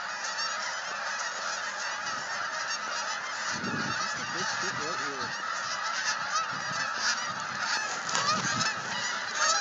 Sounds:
honk, goose, fowl, goose honking

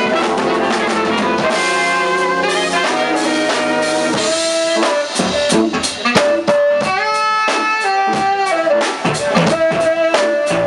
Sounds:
music

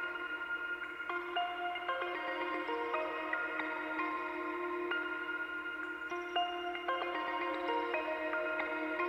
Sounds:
electronica

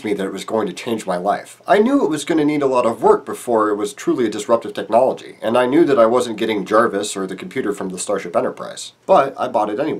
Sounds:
speech

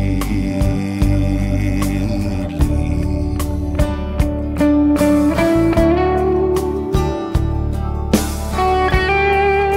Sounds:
guitar, music

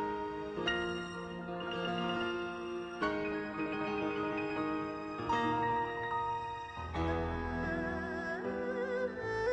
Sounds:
playing erhu

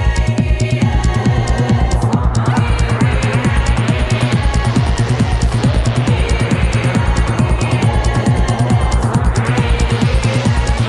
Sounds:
techno, trance music

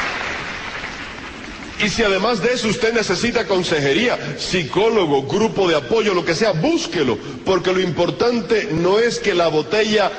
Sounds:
speech, radio

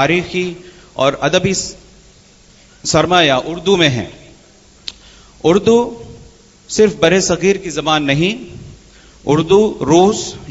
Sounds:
male speech, speech, narration

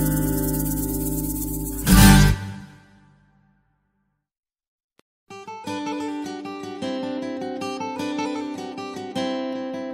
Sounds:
acoustic guitar

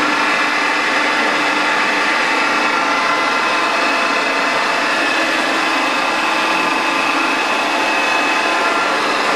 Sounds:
lathe spinning

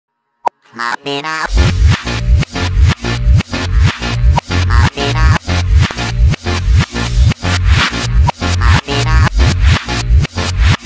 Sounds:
music, electronic dance music

